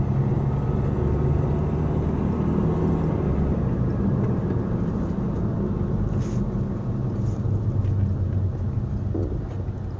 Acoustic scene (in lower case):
car